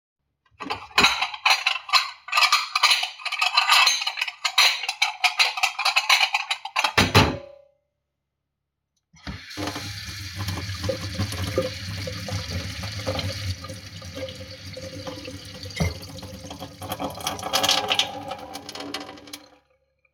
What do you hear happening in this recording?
I clinked dishes together for a few seconds and then turned on the water before stopping the recording.